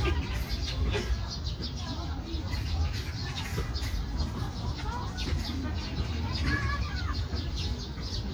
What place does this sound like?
park